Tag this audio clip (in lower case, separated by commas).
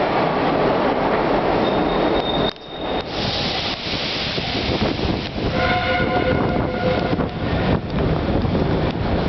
rail transport, train, train wagon, underground, train horn